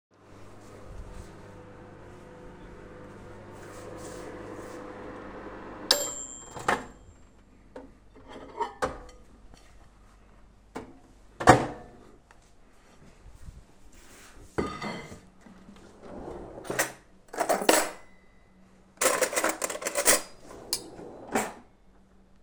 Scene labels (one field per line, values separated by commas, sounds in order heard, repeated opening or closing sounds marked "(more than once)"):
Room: kitchen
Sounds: microwave, cutlery and dishes, wardrobe or drawer (more than once)